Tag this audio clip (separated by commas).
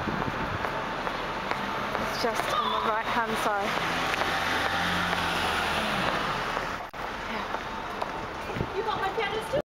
Car, Vehicle, Speech